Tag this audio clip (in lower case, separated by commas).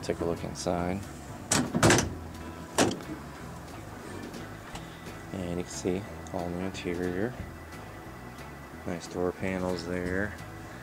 music, speech